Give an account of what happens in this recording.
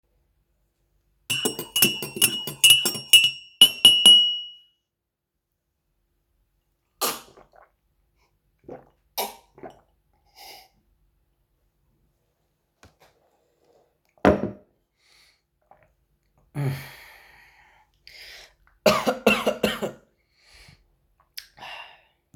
I used my spoon to mix the tea and then I drank the tea. After drinking the tea, I coughed a bit.